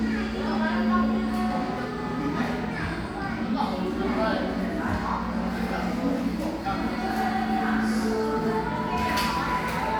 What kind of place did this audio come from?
crowded indoor space